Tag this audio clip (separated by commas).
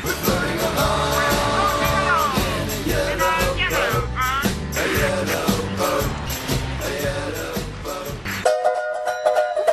Music